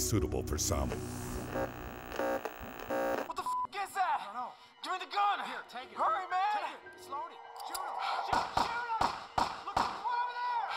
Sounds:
speech

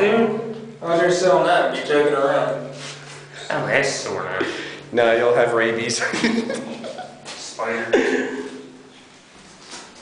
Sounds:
speech

